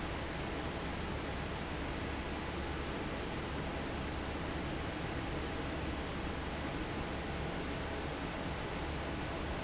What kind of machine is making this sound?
fan